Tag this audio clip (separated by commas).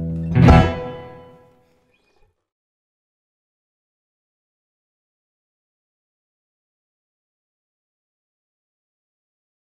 Guitar, Music